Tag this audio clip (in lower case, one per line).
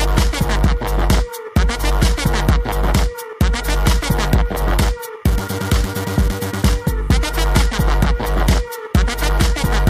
music